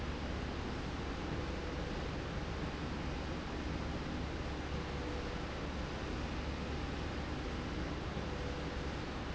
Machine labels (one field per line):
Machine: slide rail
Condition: normal